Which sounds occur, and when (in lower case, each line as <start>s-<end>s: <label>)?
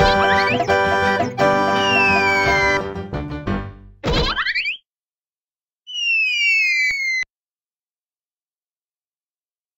5.8s-7.2s: video game sound
5.8s-7.2s: sound effect